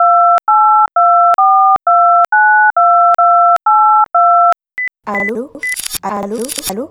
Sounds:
alarm, telephone

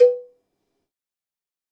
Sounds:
bell, cowbell

